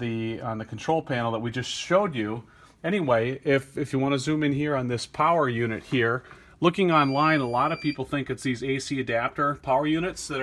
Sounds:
speech

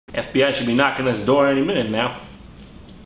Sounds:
speech

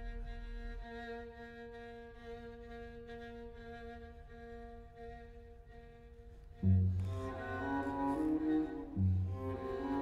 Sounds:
cello
music
musical instrument
bowed string instrument

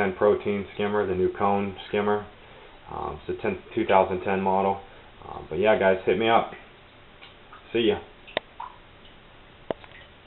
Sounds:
speech
water

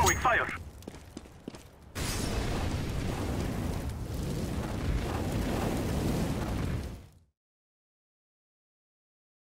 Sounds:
speech

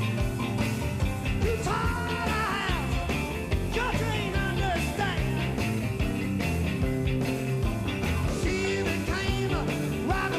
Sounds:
music

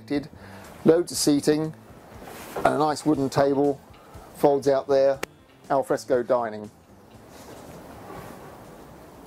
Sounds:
speech
music

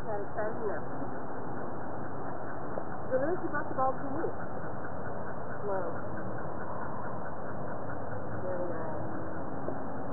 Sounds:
speech

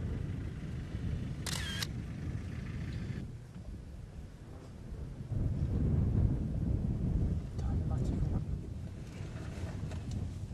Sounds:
speech

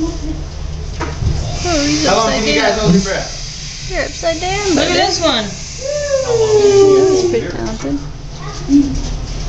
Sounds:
speech

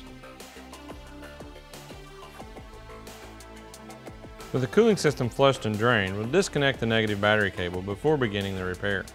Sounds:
music
speech

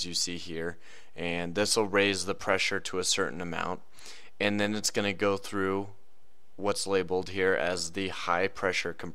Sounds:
speech

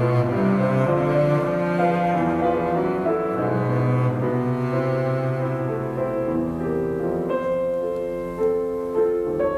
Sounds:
playing double bass

